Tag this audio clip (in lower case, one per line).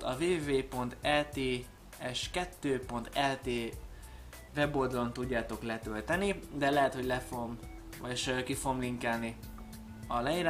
speech
music